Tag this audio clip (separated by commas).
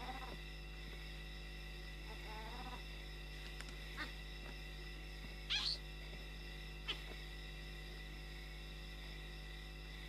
Animal